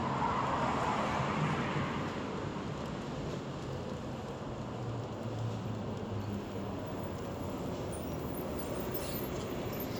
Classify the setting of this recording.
street